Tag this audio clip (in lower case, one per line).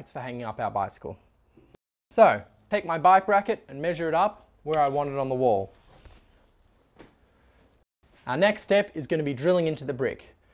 speech